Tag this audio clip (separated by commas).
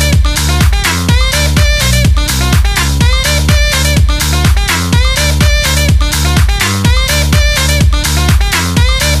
Music, House music, Electronic music, Disco